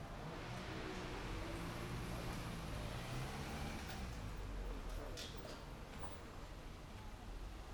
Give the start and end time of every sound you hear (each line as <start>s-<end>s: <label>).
0.1s-5.6s: car
0.1s-5.6s: car engine accelerating